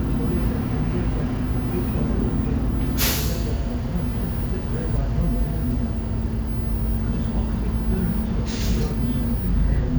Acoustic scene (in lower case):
bus